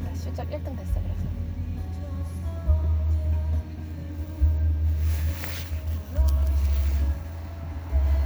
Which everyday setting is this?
car